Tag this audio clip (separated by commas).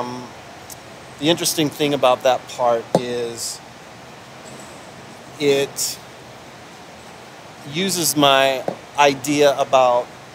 Speech